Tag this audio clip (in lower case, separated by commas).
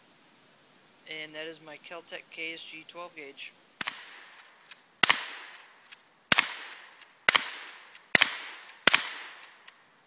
cap gun, speech, cap gun shooting